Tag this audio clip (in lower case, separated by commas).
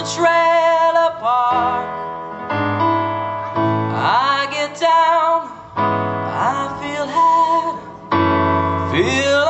music, progressive rock